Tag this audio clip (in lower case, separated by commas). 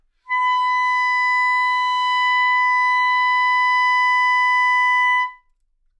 woodwind instrument, musical instrument, music